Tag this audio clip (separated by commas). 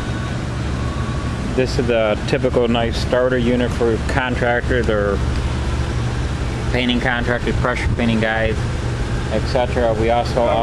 Speech